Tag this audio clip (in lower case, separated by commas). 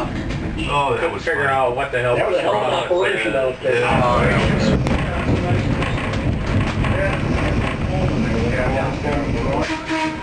steam whistle